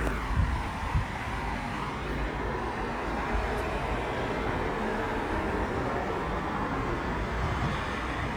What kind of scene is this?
street